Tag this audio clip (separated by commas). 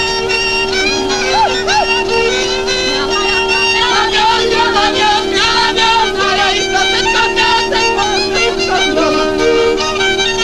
Wind instrument, Bagpipes